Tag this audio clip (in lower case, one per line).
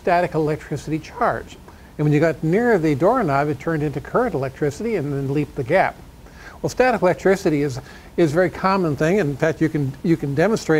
speech